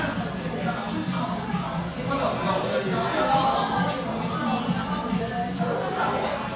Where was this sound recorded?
in a cafe